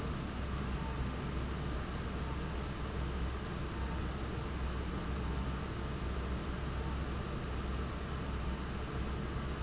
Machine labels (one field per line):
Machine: fan